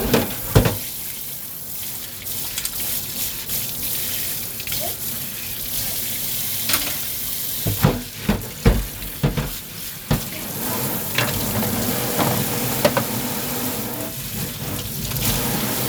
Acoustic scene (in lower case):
kitchen